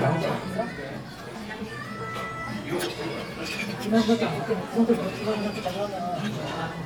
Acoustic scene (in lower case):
crowded indoor space